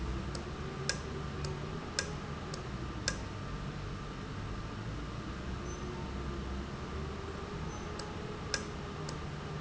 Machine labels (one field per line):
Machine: valve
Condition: normal